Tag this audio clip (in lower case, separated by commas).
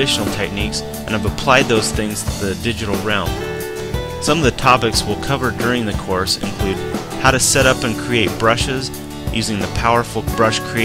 music, speech